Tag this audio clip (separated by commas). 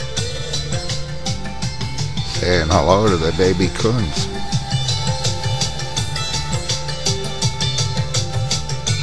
Speech, Music